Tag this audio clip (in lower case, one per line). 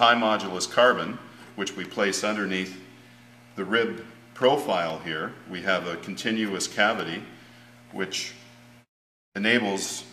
speech